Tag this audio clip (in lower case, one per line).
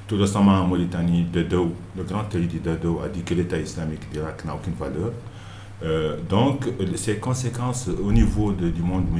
speech